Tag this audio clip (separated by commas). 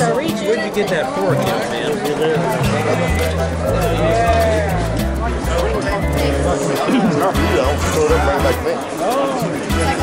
Music, Speech